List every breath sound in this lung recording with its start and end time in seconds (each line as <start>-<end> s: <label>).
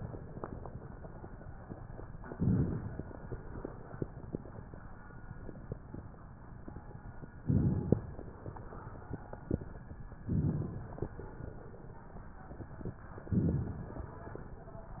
2.31-2.98 s: inhalation
2.31-2.98 s: crackles
7.46-8.12 s: inhalation
7.46-8.12 s: crackles
10.30-10.97 s: inhalation
10.30-10.97 s: crackles
13.32-13.98 s: inhalation
13.32-13.98 s: crackles